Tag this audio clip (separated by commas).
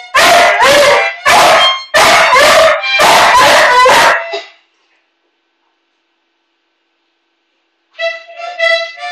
Music